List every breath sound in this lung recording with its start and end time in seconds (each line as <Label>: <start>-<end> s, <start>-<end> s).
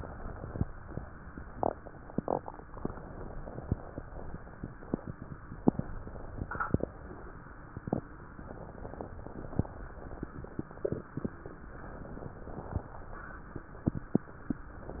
Inhalation: 0.00-0.66 s, 2.71-4.16 s, 5.71-7.32 s, 8.45-10.29 s, 11.72-13.43 s, 14.74-15.00 s
Crackles: 0.00-0.65 s, 2.71-4.17 s, 5.69-7.33 s, 8.43-10.28 s, 11.68-13.40 s, 14.70-15.00 s